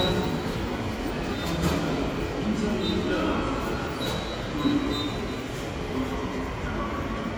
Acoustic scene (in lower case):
subway station